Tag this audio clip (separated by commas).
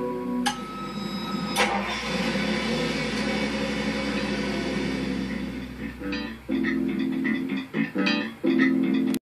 Car, Music, Vehicle